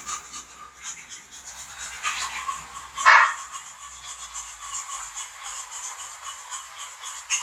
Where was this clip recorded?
in a restroom